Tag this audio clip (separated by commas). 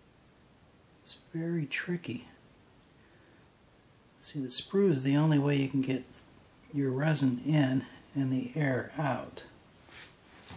Speech, inside a small room